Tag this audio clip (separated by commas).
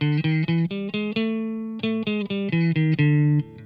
Musical instrument, Plucked string instrument, Music, Guitar, Electric guitar